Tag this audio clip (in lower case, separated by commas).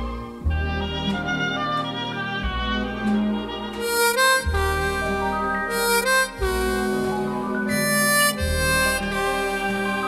bowed string instrument, harmonica, music